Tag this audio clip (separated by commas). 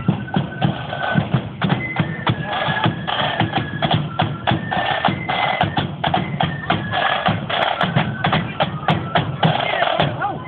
Speech, Music